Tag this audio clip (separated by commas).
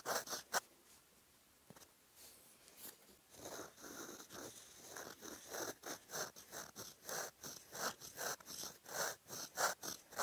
writing on blackboard with chalk